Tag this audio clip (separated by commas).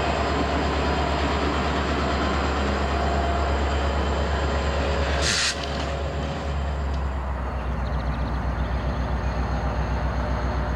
Rail transport, Vehicle, Train